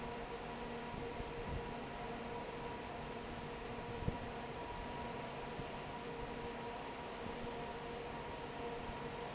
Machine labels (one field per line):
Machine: fan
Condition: normal